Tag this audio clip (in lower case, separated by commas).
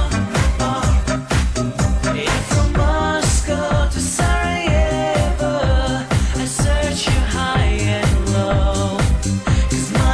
music, disco